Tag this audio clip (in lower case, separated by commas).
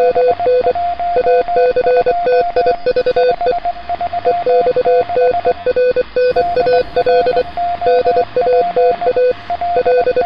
radio